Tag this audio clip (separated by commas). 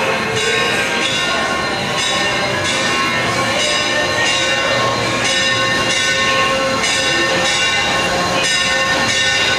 Music, Heavy engine (low frequency), Vehicle